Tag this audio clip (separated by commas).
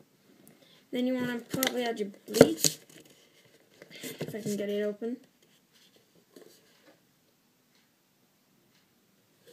Speech